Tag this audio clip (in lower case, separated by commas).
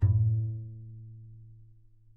music, musical instrument, bowed string instrument